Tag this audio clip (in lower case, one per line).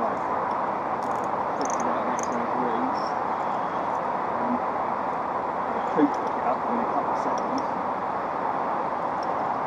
speech